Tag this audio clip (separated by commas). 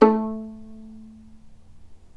Music, Bowed string instrument, Musical instrument